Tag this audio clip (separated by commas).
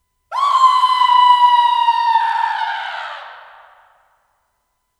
Human voice, Screaming